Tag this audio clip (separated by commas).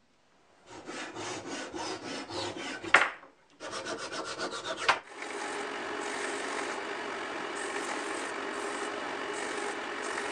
lathe spinning